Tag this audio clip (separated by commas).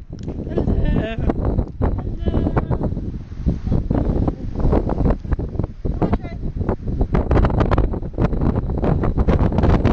Speech